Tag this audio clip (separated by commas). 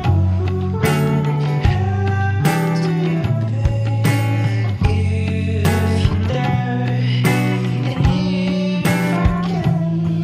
Music, Traditional music